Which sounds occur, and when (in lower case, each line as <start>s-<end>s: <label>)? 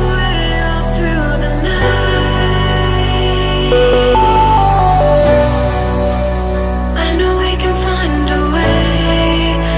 0.0s-9.7s: music
0.1s-3.8s: singing
6.9s-9.7s: female singing